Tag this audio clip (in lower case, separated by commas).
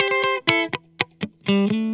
musical instrument, guitar, electric guitar, music, plucked string instrument